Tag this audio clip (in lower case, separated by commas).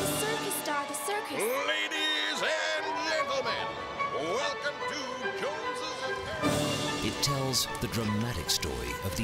speech, music